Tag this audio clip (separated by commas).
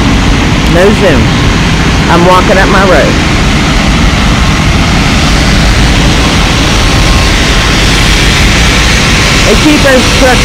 Speech